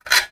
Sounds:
tools

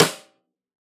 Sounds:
musical instrument, music, percussion, drum, snare drum

